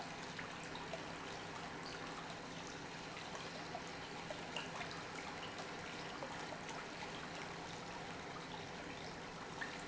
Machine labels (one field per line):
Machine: pump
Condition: normal